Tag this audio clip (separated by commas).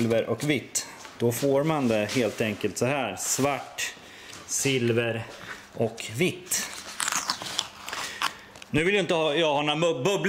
Speech